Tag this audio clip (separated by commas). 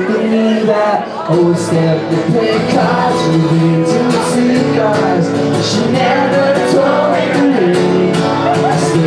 Blues, Music, Tender music